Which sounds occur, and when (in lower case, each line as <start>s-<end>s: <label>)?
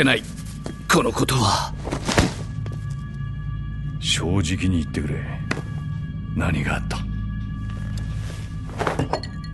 0.0s-0.3s: male speech
0.0s-9.5s: music
0.8s-1.7s: male speech
4.0s-5.2s: male speech
6.3s-7.1s: male speech
8.7s-9.5s: generic impact sounds